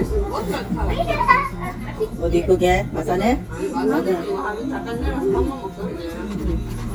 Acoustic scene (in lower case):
restaurant